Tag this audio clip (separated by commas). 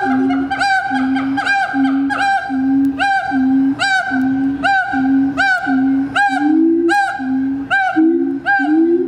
gibbon howling